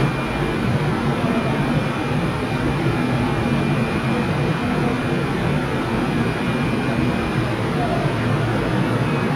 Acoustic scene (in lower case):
subway station